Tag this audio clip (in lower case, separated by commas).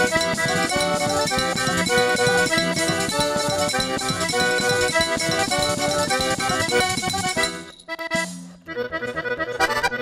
accordion